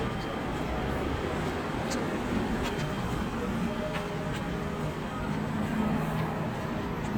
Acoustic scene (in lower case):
street